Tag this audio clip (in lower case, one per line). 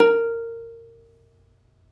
musical instrument
music
plucked string instrument